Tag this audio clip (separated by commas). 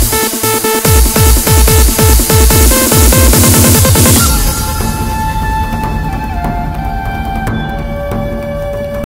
Music